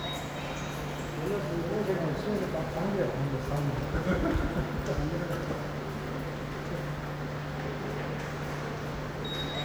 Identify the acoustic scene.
subway station